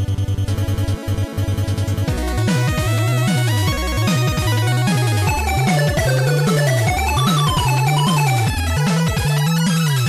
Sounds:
music

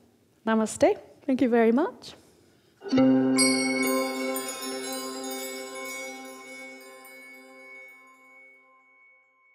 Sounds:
music
speech
inside a small room

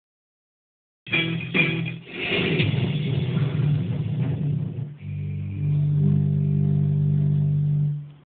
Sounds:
music

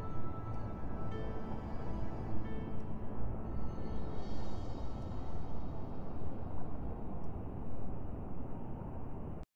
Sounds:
music

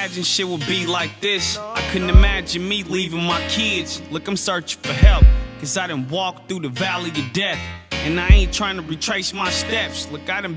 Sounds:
music

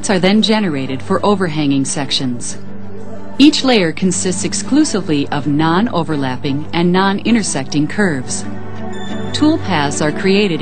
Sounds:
speech
music

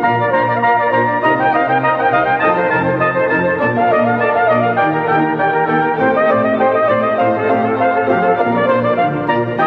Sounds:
brass instrument
trumpet

